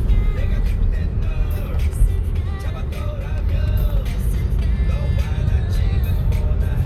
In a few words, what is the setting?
car